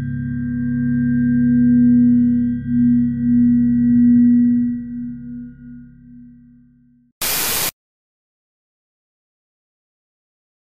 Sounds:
Music, Silence

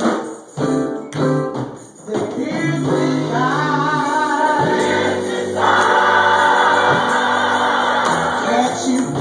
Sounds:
Choir, Singing

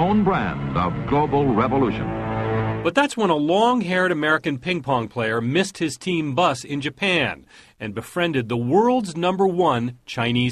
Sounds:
Music, Speech

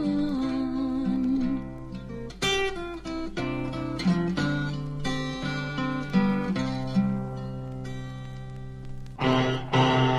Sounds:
Music, Acoustic guitar

